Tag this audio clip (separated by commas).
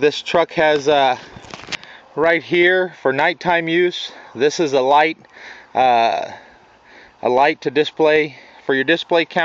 Speech